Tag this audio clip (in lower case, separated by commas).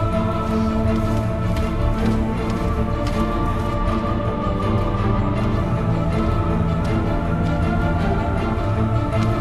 tender music, music